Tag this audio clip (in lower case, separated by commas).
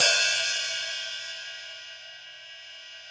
hi-hat, musical instrument, percussion, music, cymbal